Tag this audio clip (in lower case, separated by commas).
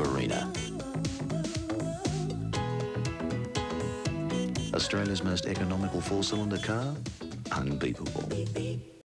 music, speech